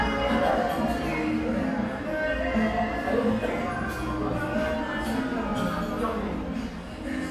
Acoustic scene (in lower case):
cafe